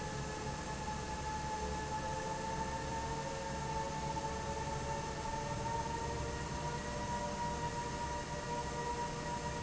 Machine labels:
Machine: fan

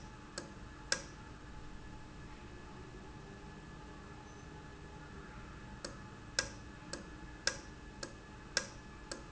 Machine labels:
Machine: valve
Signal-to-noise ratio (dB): 6 dB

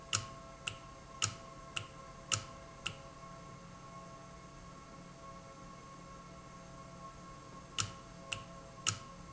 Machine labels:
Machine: valve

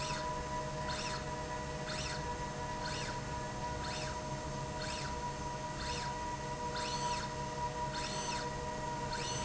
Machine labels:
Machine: slide rail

